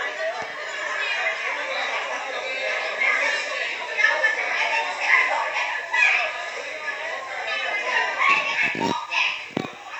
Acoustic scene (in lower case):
crowded indoor space